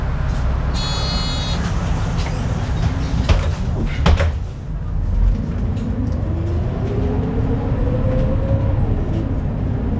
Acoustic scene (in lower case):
bus